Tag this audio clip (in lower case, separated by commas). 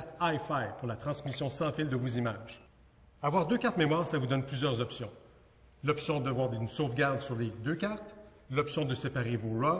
speech